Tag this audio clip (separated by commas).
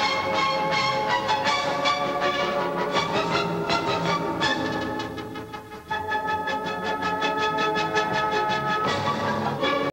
Music, Classical music